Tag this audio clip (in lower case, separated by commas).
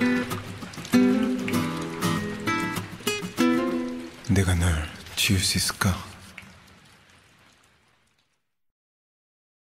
speech, music